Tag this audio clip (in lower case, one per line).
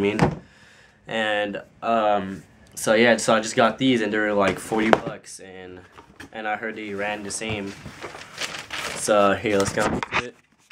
inside a small room
speech